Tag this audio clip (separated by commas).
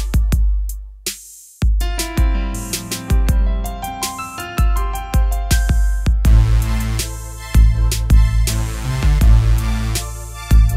Music